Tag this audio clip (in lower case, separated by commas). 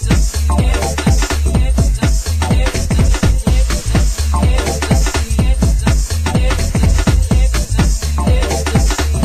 electronic music, disco, music